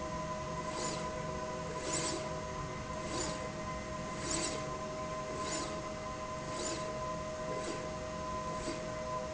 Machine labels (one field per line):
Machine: slide rail